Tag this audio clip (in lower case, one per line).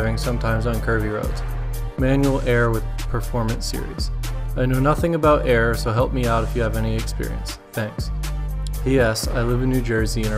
music
speech